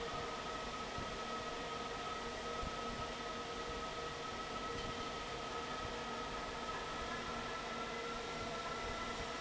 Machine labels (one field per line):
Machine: fan